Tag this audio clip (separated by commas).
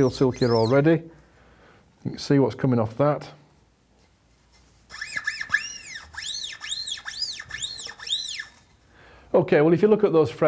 Speech